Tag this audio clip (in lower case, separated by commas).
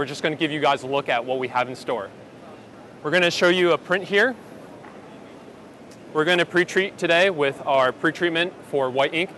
speech